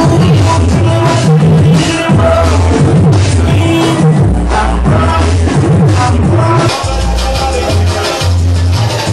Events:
[0.00, 2.59] male singing
[0.00, 9.12] music
[3.42, 5.33] male singing
[5.85, 9.12] male singing

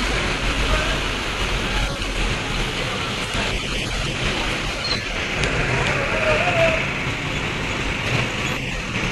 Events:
[0.01, 9.11] roadway noise

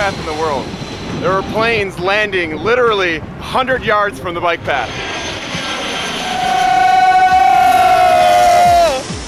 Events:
[0.00, 0.65] man speaking
[0.00, 1.63] aircraft
[1.00, 1.41] wind noise (microphone)
[1.23, 3.21] man speaking
[1.53, 3.21] music
[3.36, 4.83] man speaking
[4.67, 6.65] aircraft
[6.17, 9.02] shout
[6.79, 9.25] music

